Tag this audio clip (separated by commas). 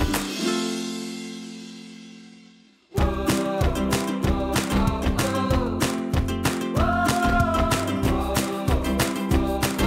Music